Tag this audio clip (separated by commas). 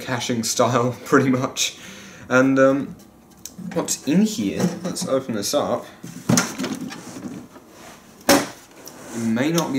Speech, inside a small room